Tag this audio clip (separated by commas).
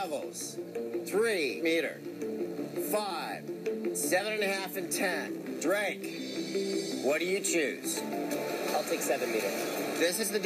Music, Speech